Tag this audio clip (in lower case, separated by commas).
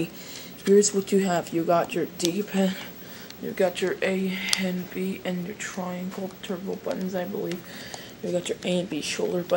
speech